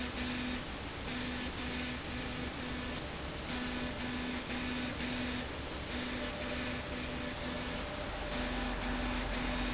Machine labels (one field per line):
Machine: slide rail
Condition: abnormal